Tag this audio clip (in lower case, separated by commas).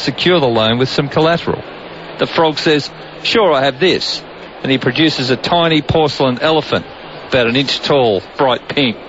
speech